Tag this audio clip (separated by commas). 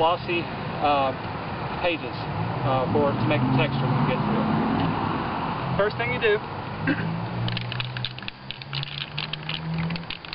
Speech